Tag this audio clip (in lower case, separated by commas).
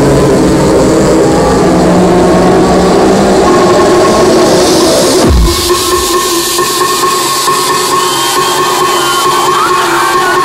house music, electronic music, trance music, crowd, music, techno